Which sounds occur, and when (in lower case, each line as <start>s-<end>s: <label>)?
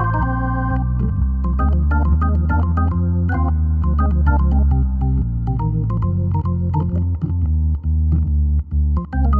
0.0s-9.3s: music